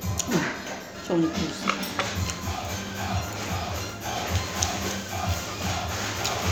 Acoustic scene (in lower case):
restaurant